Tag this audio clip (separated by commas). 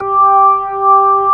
Organ, Music, Musical instrument, Keyboard (musical)